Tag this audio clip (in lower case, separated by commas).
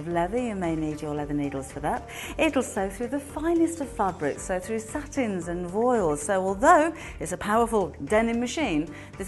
music, speech